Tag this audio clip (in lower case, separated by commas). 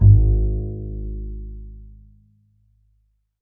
bowed string instrument, music, musical instrument